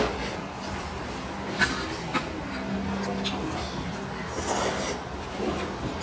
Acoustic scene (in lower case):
restaurant